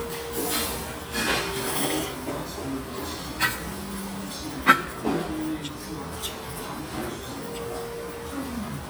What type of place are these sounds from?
restaurant